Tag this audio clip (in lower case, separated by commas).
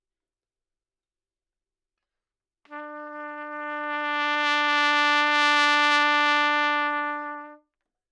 musical instrument, trumpet, music, brass instrument